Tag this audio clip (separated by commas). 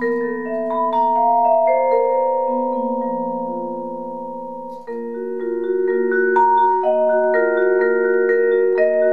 playing vibraphone, inside a small room, Vibraphone, Musical instrument, Music